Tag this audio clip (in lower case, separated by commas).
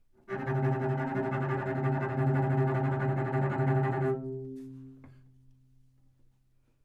music, bowed string instrument, musical instrument